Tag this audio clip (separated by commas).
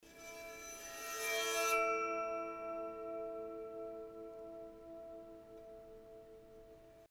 Music, Musical instrument, Bowed string instrument